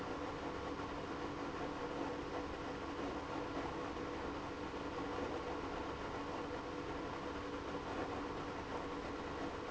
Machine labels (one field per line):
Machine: pump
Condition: abnormal